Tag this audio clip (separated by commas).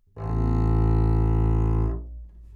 Musical instrument, Bowed string instrument, Music